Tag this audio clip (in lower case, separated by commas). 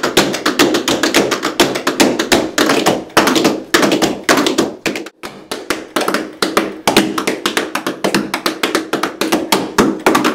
music, tap